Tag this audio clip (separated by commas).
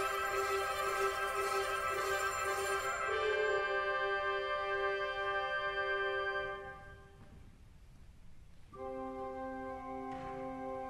Music